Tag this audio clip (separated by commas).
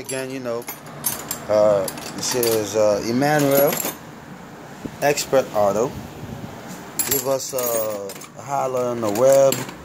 Speech